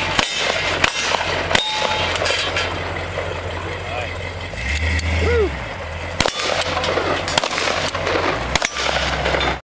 A truck idles while metal clanks